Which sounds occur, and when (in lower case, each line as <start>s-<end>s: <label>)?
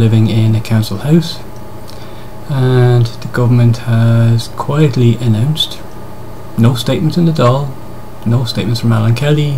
0.0s-9.5s: mechanisms
0.0s-1.3s: male speech
2.4s-5.8s: male speech
6.5s-7.7s: male speech
8.2s-9.5s: male speech